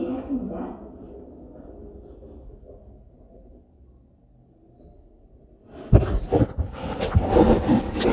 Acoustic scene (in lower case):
elevator